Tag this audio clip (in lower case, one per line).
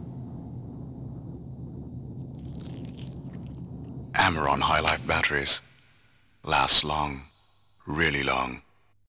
speech